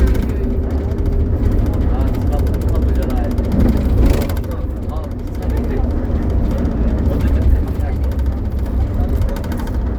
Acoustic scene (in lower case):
bus